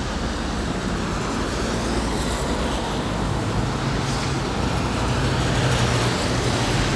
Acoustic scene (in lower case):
street